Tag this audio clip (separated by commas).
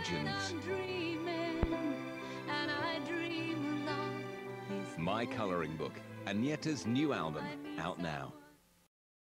Speech, Music